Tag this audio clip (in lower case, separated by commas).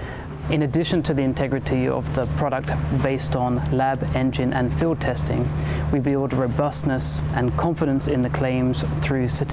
speech